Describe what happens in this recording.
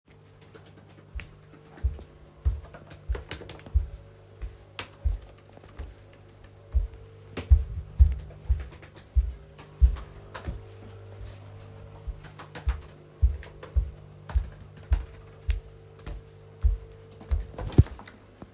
Typing on the keyboard as another person holding the microphone walks around the room.